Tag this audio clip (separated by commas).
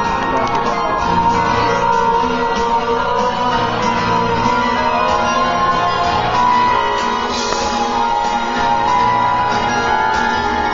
Marimba, Mallet percussion, Glockenspiel